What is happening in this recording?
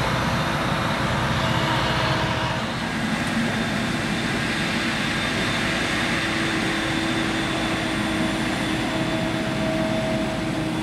Engine is running